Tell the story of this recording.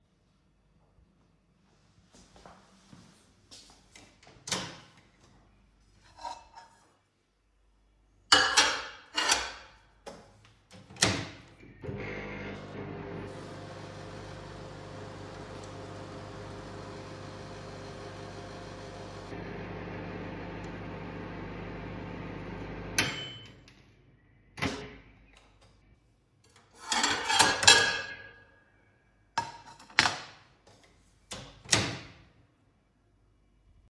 i open the microwave door take my plate of food and put it inside. then i start the microwave when it finishes i open the door take out my plate of food and close the microwave door.